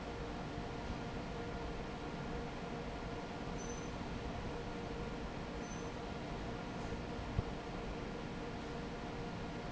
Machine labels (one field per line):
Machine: fan